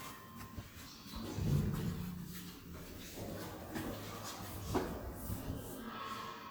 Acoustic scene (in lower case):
elevator